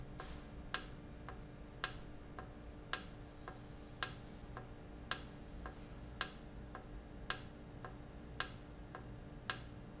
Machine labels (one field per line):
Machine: valve